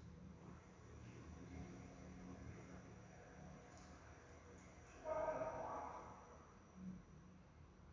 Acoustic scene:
elevator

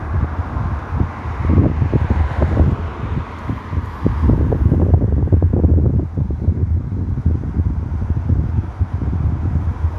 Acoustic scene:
street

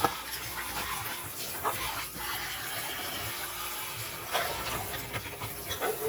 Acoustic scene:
kitchen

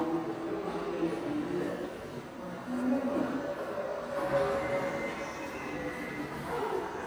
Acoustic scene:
subway station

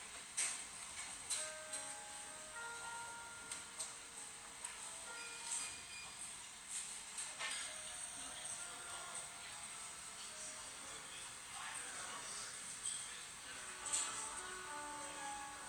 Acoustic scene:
cafe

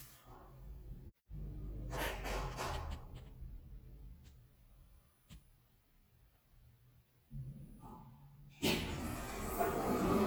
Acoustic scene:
elevator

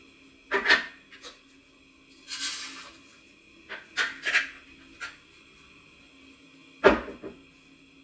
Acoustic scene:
kitchen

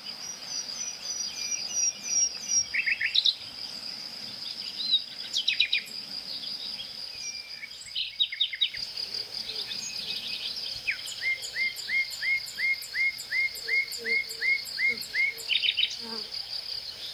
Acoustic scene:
park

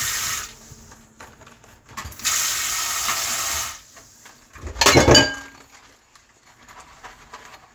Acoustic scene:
kitchen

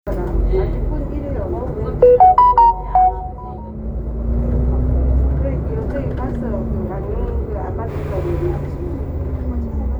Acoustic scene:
bus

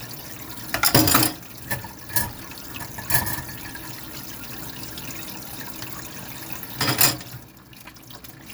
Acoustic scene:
kitchen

